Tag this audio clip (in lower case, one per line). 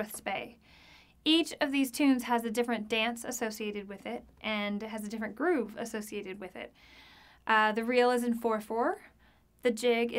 speech